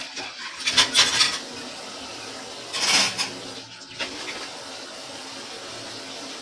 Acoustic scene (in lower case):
kitchen